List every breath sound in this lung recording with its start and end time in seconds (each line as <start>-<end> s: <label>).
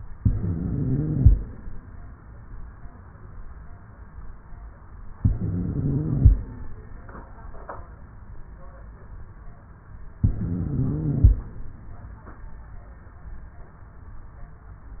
0.15-1.35 s: inhalation
0.15-1.35 s: wheeze
5.17-6.36 s: inhalation
5.17-6.36 s: wheeze
10.21-11.40 s: inhalation
10.21-11.40 s: wheeze